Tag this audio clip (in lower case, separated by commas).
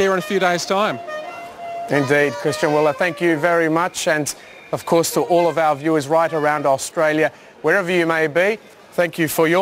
speech, music